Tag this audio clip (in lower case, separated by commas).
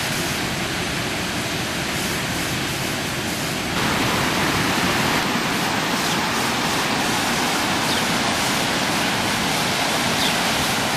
outside, rural or natural